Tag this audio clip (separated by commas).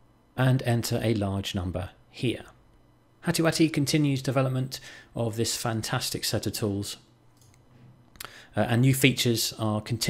Speech